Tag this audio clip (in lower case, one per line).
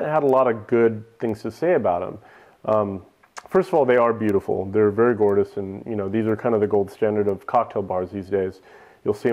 speech